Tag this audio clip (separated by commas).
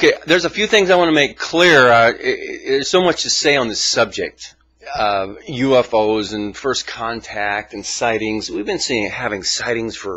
Speech